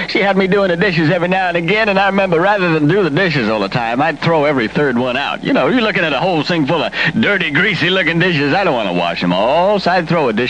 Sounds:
Speech

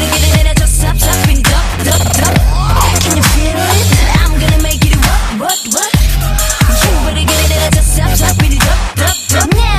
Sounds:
Music, Pop music, Music of Asia

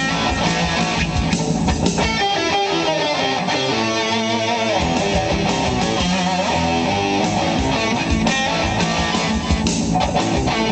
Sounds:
Musical instrument, Guitar, Music, Plucked string instrument, Acoustic guitar

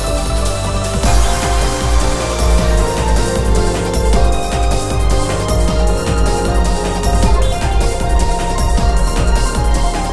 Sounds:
Music, Exciting music

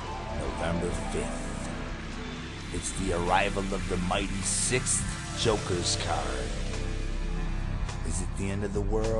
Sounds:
Music, Speech

